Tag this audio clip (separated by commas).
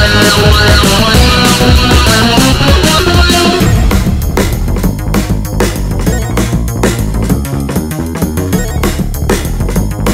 Music